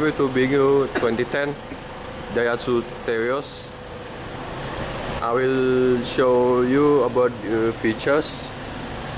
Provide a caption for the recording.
Man speaking over engine sound